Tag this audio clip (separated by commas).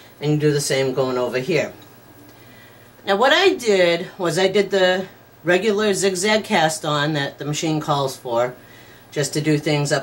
Speech